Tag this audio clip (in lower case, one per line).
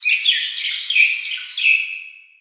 chirp
bird
animal
wild animals
bird vocalization